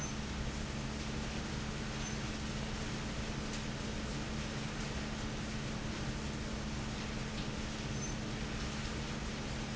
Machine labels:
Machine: fan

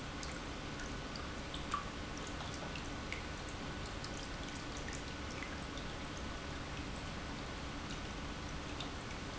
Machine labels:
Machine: pump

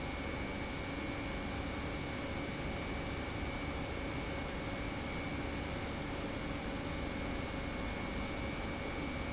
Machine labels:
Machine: pump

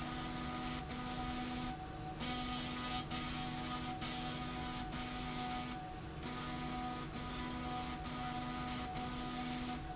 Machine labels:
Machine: slide rail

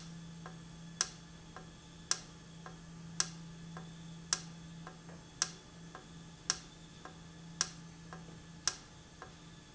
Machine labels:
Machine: valve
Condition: normal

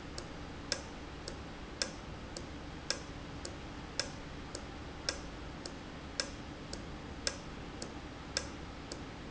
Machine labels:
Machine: valve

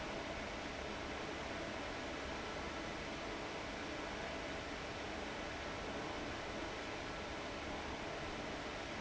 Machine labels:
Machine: fan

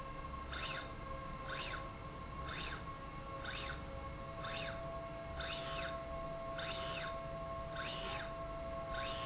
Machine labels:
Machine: slide rail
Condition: normal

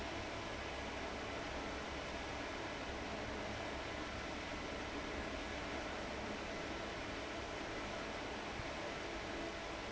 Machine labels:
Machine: fan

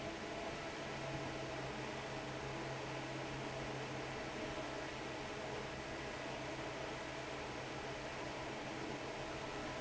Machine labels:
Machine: fan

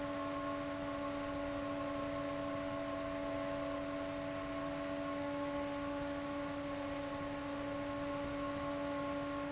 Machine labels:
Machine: fan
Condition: abnormal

